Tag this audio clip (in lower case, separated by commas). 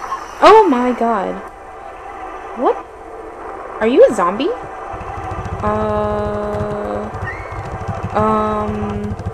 speech